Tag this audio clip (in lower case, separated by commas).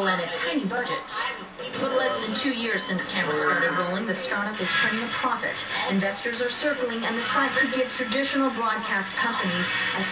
speech